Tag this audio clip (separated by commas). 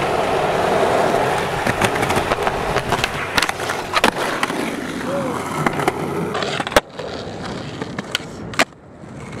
skateboarding, Skateboard